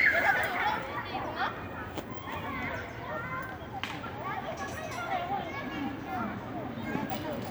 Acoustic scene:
residential area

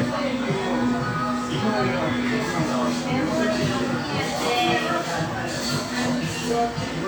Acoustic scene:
cafe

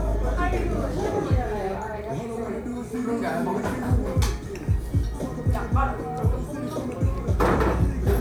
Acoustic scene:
cafe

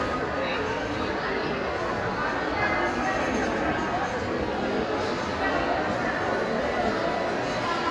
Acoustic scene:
crowded indoor space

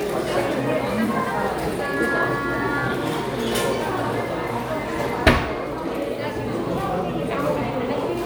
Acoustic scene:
crowded indoor space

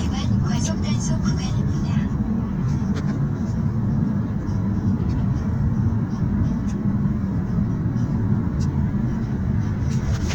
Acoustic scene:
car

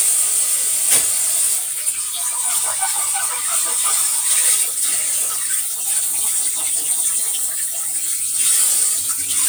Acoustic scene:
kitchen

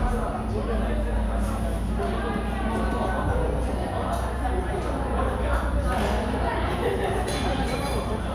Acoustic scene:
cafe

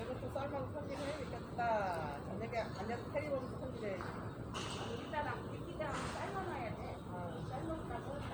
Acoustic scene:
park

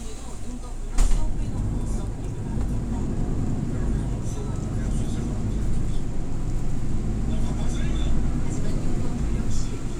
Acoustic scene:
bus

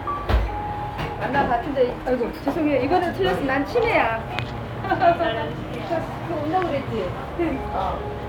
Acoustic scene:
cafe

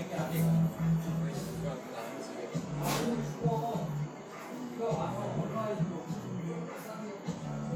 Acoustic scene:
cafe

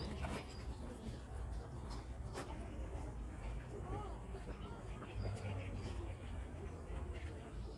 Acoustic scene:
park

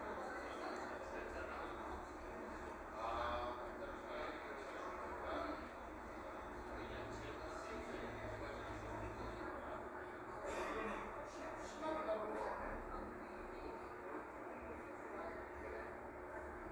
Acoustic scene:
cafe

